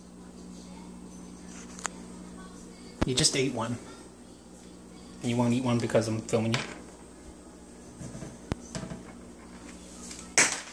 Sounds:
speech, music, bird, inside a small room

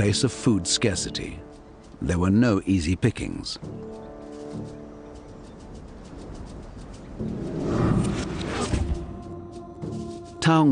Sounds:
music, speech, outside, rural or natural

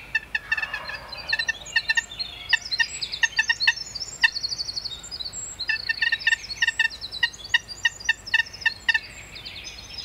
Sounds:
bird, animal

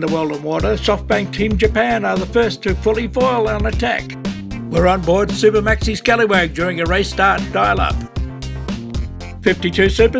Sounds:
music, speech

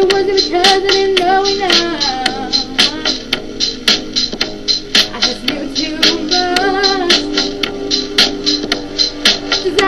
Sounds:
music, female singing

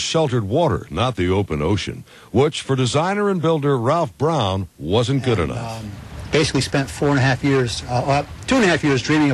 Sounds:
speedboat, vehicle, speech

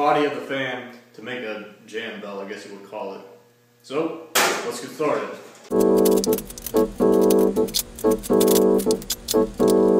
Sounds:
music, speech

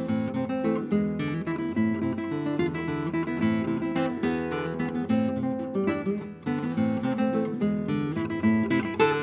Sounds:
musical instrument, plucked string instrument, strum, music, guitar

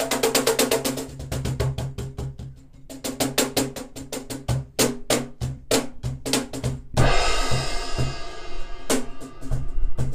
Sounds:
cymbal, outside, urban or man-made, music, percussion

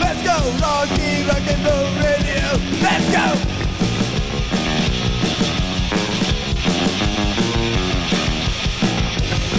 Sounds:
rock and roll, music

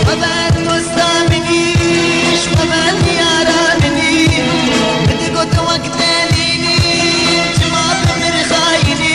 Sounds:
music of bollywood, music

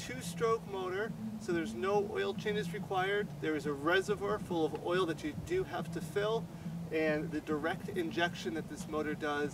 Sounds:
music, speech

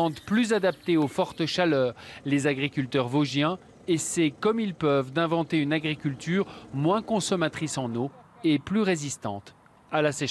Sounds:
running electric fan

